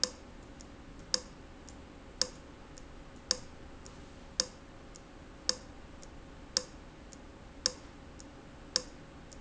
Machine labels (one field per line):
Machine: valve